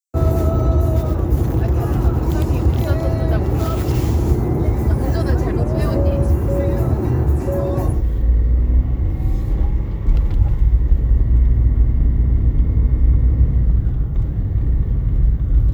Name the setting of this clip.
car